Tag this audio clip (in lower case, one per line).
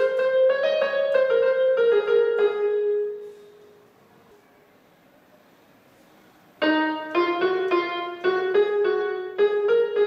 musical instrument
piano
music
keyboard (musical)